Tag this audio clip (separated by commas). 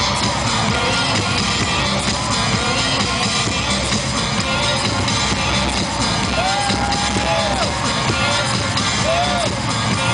Music, Rhythm and blues, Dance music, Blues